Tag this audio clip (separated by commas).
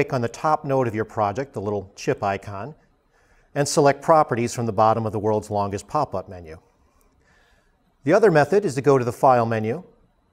Speech